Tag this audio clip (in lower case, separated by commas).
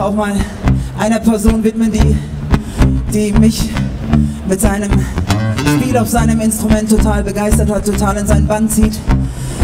music, speech